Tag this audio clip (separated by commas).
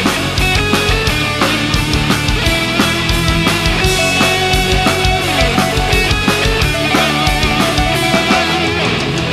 Electric guitar, Guitar, Drum kit, Drum, Plucked string instrument, Musical instrument, Music